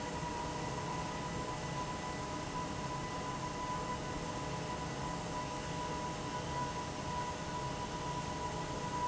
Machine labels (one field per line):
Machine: fan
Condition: abnormal